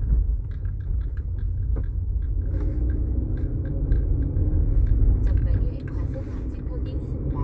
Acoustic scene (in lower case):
car